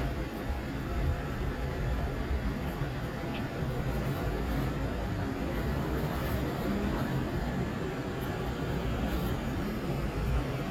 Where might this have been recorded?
on a street